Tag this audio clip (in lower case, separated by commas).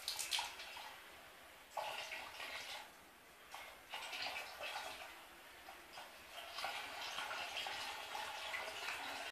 faucet, water